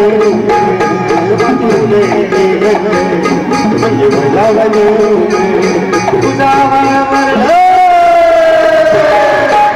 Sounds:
Folk music, Music

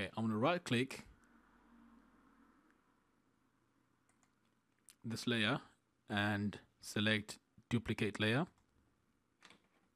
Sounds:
Speech

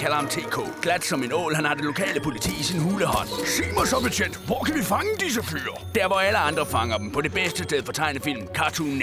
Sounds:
Music, Speech

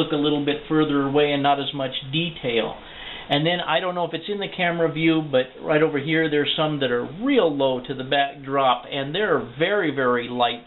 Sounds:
inside a small room, Speech

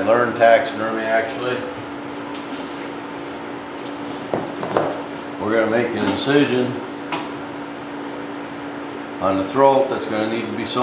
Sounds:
Speech

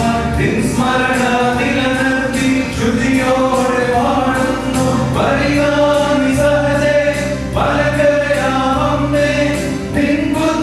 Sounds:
Choir, Vocal music

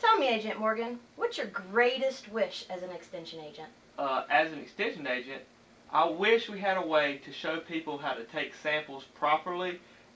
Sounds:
Speech

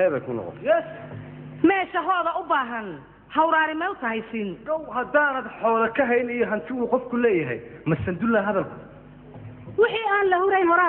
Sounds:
Speech

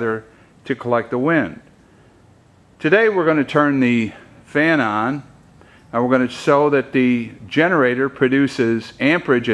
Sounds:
Speech

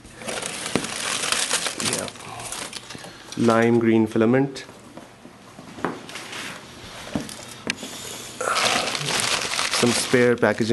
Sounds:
Speech

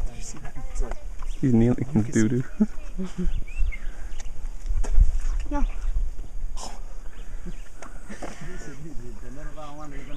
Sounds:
Speech, Male speech

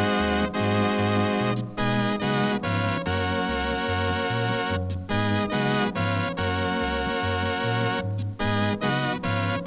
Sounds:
playing electronic organ

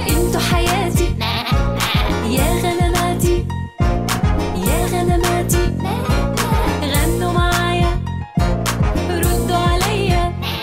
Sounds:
Music

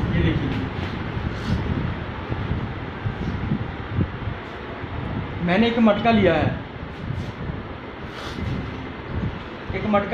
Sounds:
running electric fan

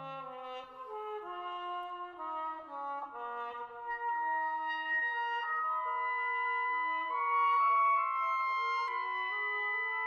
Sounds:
Trumpet, Music

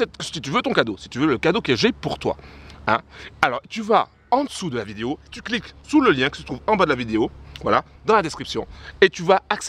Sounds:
Speech

